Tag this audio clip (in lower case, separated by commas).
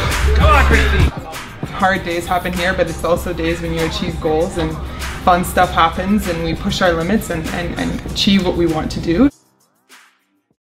speech, music